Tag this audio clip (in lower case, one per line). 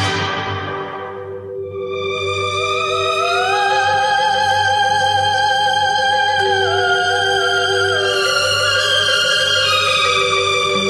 music